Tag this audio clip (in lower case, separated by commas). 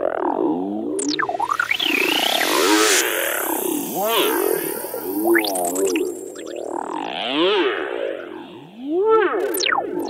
electronic music, music